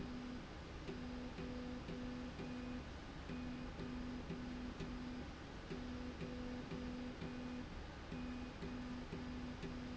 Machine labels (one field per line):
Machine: slide rail